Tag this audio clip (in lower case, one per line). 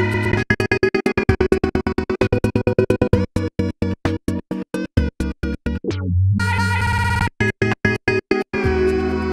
electronic music
music
inside a small room